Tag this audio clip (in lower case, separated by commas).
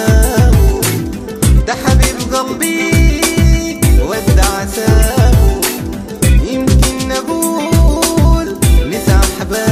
music